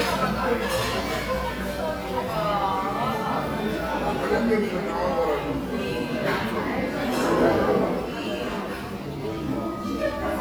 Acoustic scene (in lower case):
crowded indoor space